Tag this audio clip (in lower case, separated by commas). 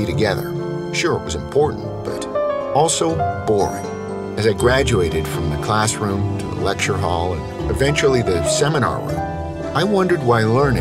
music, speech